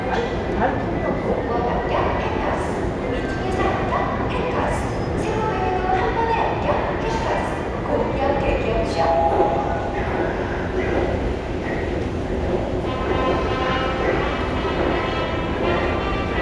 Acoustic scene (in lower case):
subway station